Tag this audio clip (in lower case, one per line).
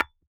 tap
hammer
tools
glass